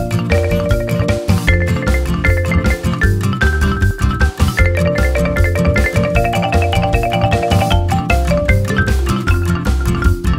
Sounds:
video game music
music

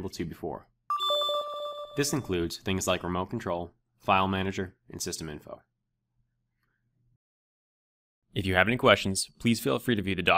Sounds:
speech

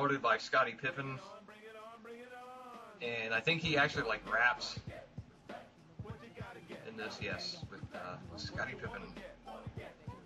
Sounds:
speech
music

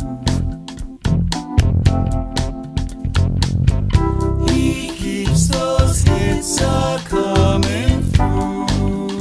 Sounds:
music

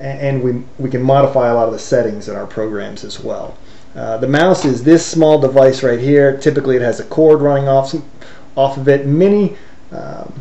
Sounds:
speech

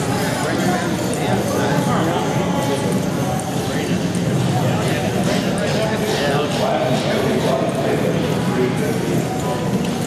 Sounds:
speech
clip-clop

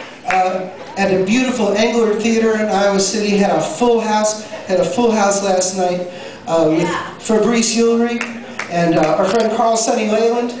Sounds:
speech

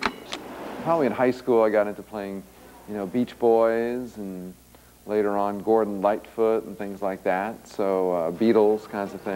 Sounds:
music
speech

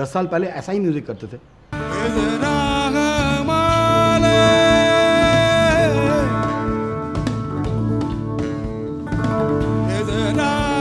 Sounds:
music
speech

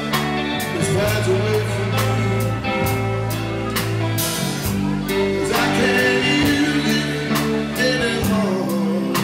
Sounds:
music
speech

